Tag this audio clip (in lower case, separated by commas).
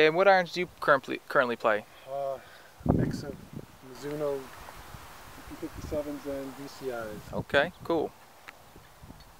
outside, rural or natural, speech